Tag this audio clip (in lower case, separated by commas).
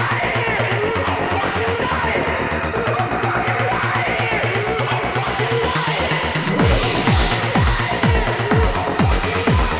music